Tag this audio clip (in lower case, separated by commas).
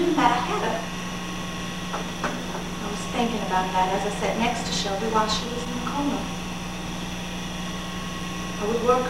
monologue, speech